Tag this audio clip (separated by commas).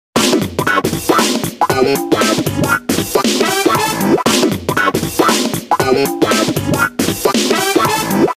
Music